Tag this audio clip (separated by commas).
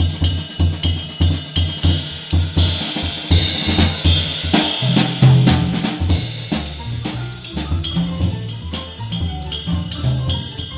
Drum kit, Jazz, Cymbal, Musical instrument, Music, Rimshot, Drum